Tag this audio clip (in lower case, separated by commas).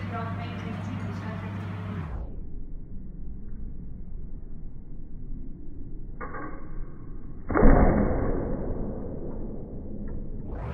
speech, arrow